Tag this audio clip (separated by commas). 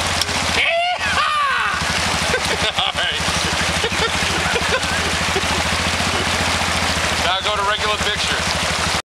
Speech